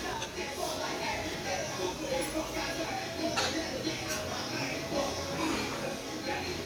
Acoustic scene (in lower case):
restaurant